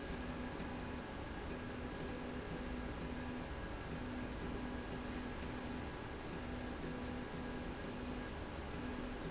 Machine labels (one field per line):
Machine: slide rail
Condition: normal